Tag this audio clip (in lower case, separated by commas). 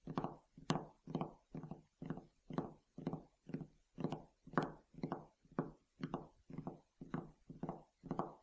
tap